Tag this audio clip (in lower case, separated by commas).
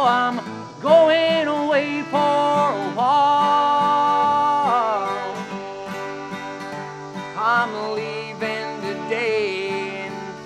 music